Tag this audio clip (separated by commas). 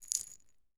Rattle